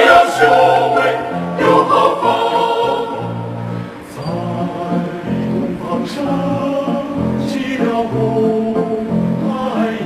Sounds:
music

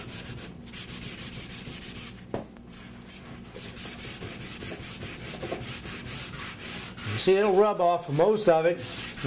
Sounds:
speech
inside a large room or hall
wood

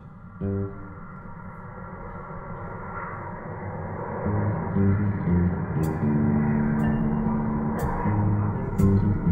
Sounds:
percussion

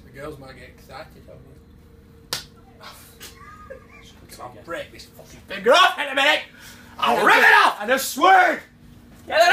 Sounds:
inside a small room
speech
smack

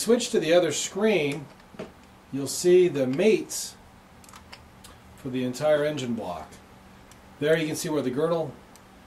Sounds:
speech

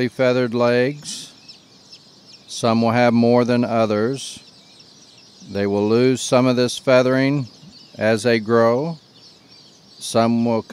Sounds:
speech

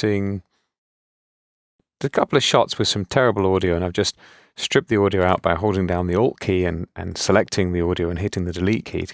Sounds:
speech

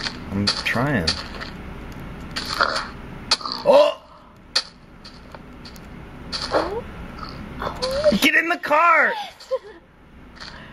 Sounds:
speech

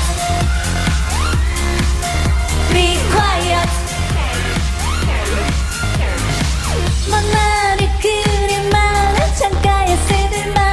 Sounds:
music

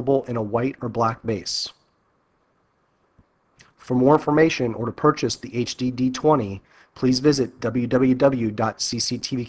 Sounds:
speech

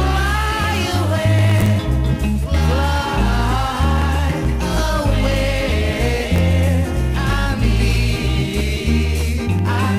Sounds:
music

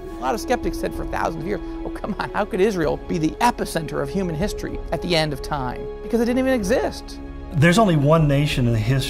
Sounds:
music
speech

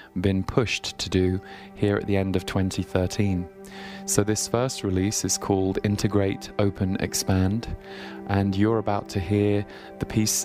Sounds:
speech
music

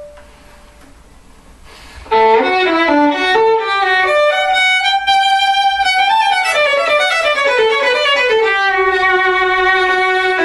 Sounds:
violin
musical instrument

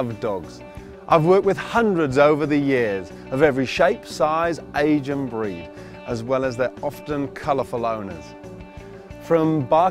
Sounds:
music
speech

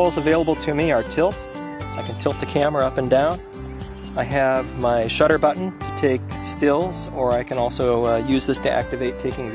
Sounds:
speech
music

